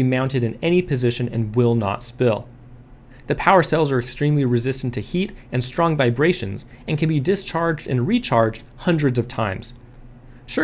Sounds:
speech

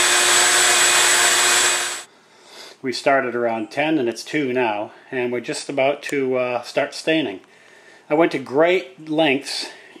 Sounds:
speech

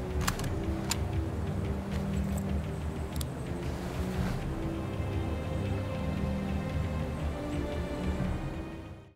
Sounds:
music

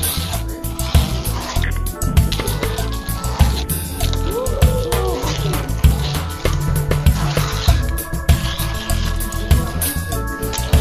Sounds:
music

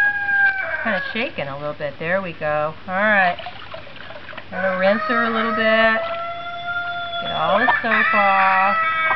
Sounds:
speech
animal
chicken

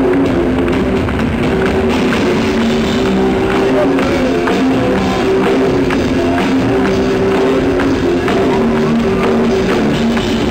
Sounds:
heavy metal
guitar
speech
bass guitar
rock music
music
musical instrument
plucked string instrument

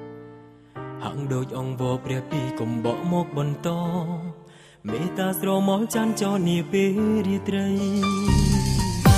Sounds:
soul music
music
singing

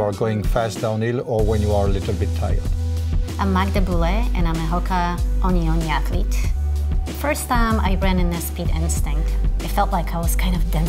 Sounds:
music
speech

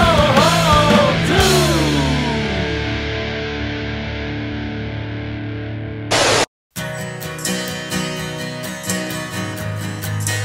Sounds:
music
punk rock

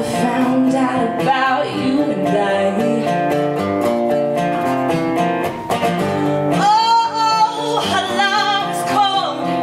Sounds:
music

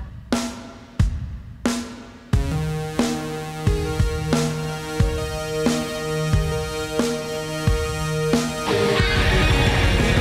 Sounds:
rhythm and blues
music

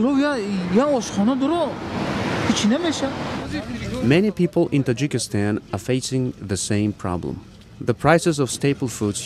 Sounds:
speech

